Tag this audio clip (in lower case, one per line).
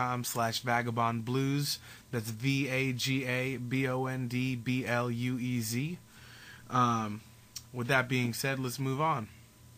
speech